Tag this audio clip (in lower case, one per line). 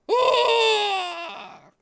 screaming
human voice